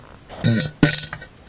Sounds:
fart

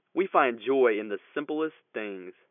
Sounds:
speech
human voice

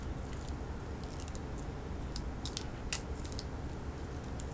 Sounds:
crack

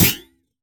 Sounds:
thud

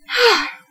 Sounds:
human voice
sigh

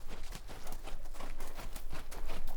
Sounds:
animal
livestock

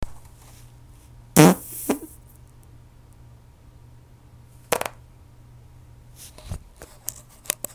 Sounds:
fart

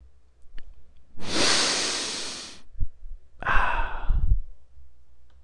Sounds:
breathing
respiratory sounds

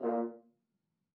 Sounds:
musical instrument
music
brass instrument

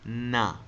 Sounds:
human voice

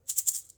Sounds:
music
musical instrument
rattle (instrument)
percussion

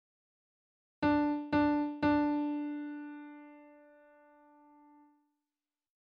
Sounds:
piano
keyboard (musical)
musical instrument
music

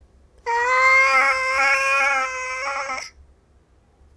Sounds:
animal
domestic animals
meow
cat

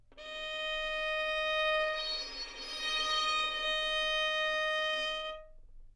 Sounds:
music
bowed string instrument
musical instrument

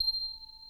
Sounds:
bell

